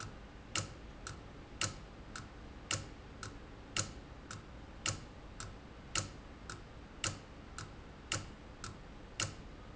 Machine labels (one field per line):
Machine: valve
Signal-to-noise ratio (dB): 6 dB